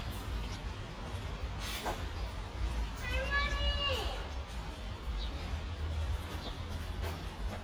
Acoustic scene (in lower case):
residential area